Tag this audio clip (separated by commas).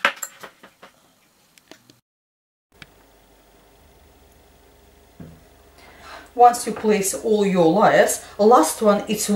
Speech